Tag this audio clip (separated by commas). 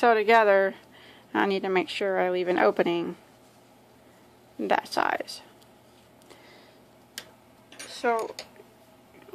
Speech, inside a small room